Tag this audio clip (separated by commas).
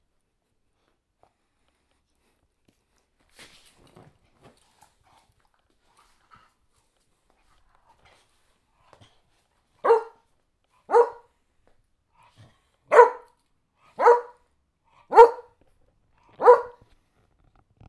Dog, Animal, Bark, pets